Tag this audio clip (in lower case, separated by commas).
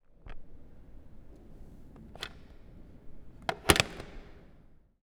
telephone, alarm